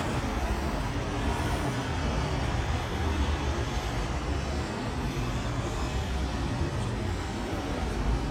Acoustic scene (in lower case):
residential area